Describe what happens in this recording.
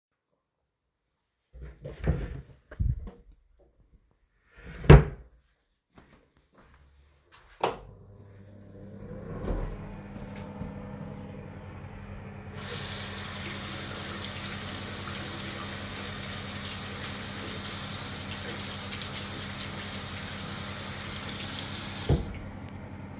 The device is carried by hand during the recording. A wardrobe or cabinet is opened and closed first, then a light switch is pressed. Footsteps are heard afterward, followed by running water. Ventilation noise is audible in the background.